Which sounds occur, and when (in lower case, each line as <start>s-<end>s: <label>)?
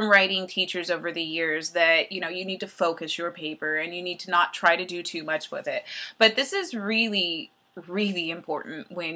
0.0s-5.8s: female speech
0.0s-9.1s: mechanisms
5.8s-6.1s: breathing
6.2s-7.5s: female speech
7.8s-9.1s: female speech